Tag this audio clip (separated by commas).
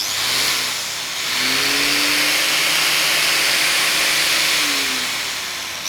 Tools